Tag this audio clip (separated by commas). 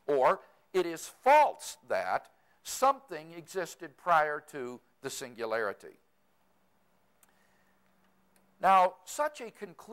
Speech